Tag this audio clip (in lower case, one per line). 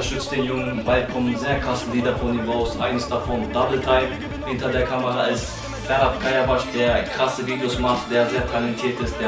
speech
music